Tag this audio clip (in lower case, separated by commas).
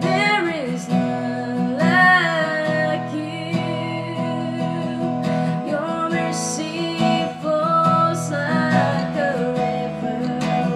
jazz, music